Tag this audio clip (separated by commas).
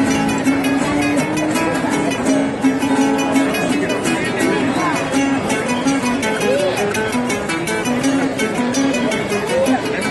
Music, Speech